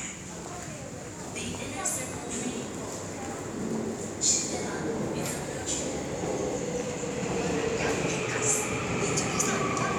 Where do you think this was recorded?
in a subway station